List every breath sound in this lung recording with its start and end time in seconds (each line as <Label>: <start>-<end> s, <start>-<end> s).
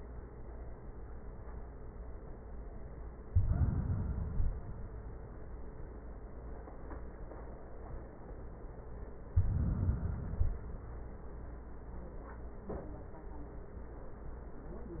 Inhalation: 3.21-4.71 s, 9.28-10.78 s